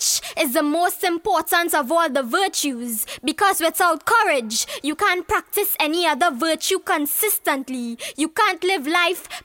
A woman gives a speech energetically